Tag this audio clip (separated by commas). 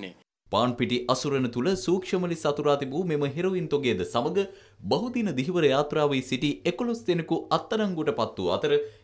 Speech